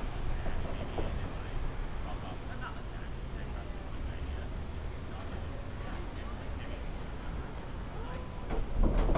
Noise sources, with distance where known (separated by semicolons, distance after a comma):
non-machinery impact, near; person or small group talking